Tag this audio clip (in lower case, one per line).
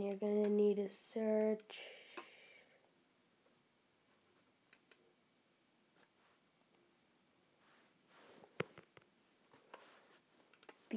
speech